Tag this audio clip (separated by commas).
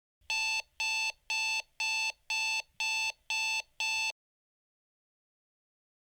Alarm